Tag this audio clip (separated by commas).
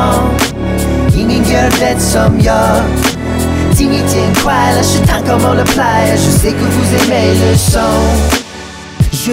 rapping